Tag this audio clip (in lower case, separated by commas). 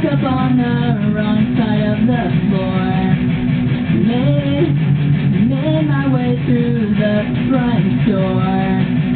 music, electric guitar, musical instrument, plucked string instrument